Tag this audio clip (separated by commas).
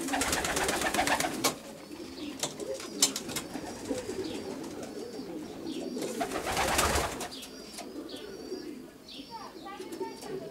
Speech, Bird, Coo, Pigeon